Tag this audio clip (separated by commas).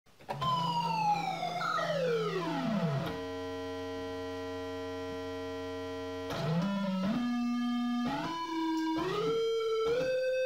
playing theremin